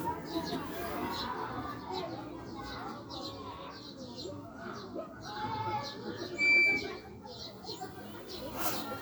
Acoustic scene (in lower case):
residential area